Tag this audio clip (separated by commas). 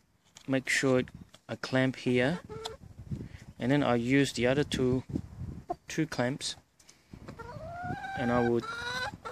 rooster, Animal, Speech, Domestic animals